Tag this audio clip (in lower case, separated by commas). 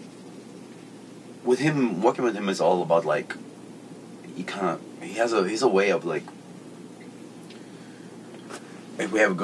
speech